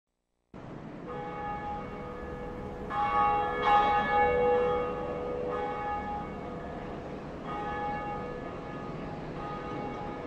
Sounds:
church bell ringing

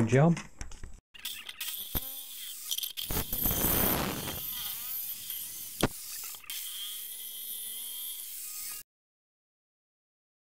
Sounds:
Speech, inside a small room

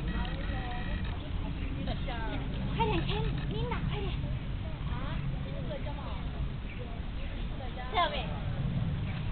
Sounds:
Children playing, Speech

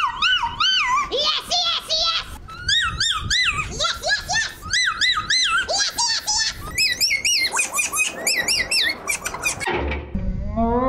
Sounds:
Speech, Male speech

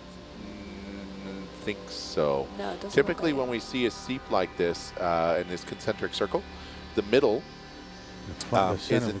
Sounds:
Speech, Music

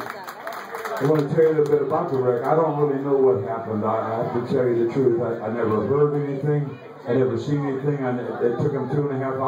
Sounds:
Speech

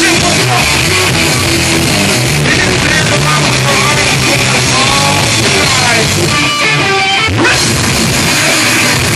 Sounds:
Music, Speech

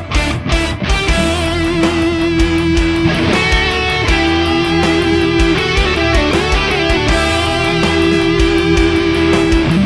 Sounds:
Music

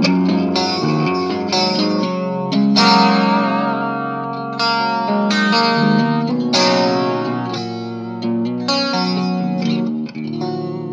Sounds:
Music, Electric guitar, Musical instrument, Effects unit, Plucked string instrument, Guitar

